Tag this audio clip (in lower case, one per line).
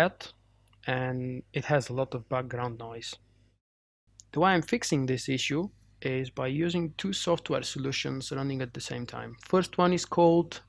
speech